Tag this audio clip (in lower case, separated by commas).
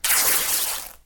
tearing